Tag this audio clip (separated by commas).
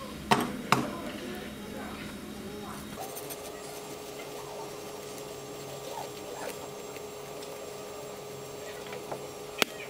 Speech